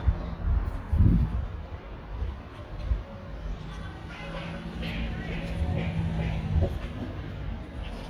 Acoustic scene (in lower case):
residential area